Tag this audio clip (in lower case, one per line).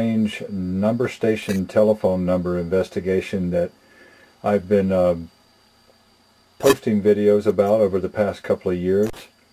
speech